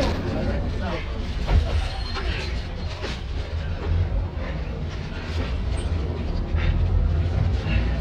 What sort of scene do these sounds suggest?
bus